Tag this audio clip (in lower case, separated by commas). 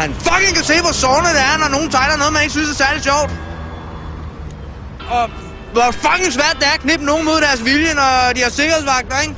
narration, male speech, music, speech